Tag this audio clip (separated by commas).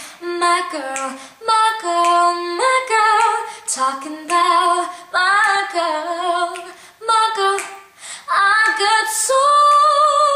Female singing